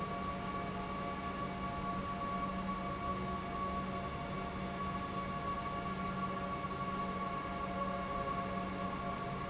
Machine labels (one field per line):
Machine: pump